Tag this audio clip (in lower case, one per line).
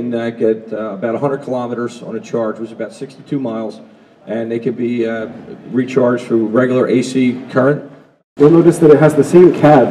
speech